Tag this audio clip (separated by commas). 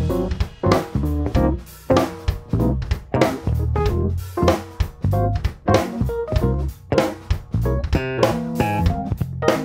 Music, Drum